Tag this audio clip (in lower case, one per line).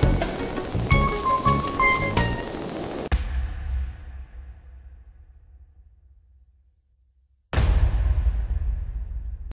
music